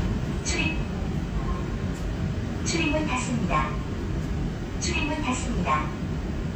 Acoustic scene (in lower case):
subway train